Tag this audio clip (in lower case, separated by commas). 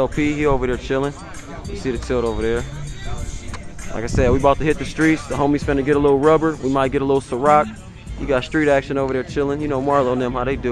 music, speech